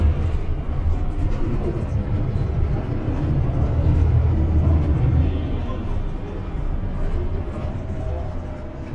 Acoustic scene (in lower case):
bus